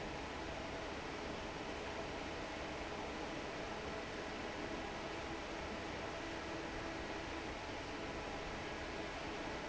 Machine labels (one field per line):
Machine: fan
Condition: normal